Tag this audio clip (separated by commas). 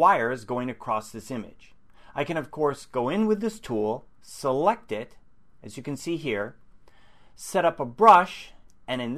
Speech